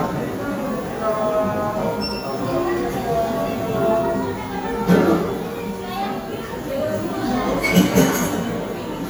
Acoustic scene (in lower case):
cafe